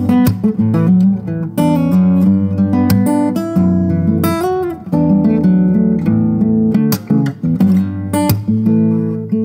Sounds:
Plucked string instrument, Guitar, Acoustic guitar, Music, Musical instrument

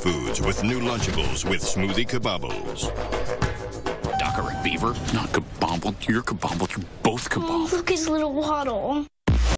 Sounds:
Music, Speech

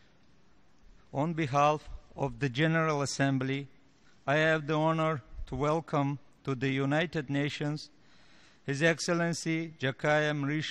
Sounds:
Speech, Male speech, Narration

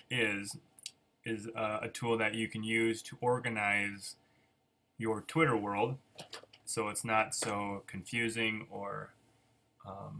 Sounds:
Speech

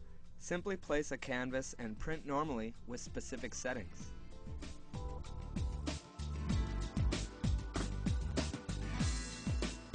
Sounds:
Speech, Music

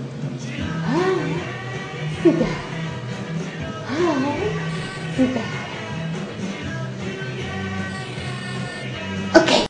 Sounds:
Music, Speech

